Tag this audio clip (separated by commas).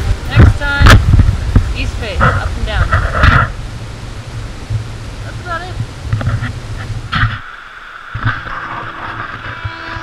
White noise, Speech